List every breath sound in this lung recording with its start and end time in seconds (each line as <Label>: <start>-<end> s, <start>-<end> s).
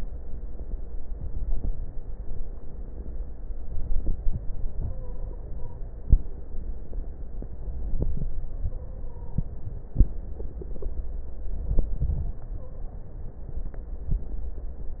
Inhalation: 1.05-2.09 s, 3.62-4.92 s, 7.57-8.59 s, 11.32-12.47 s
Stridor: 4.88-5.87 s, 8.57-9.68 s, 12.60-12.94 s
Crackles: 1.05-2.09 s, 7.57-8.59 s, 11.32-12.47 s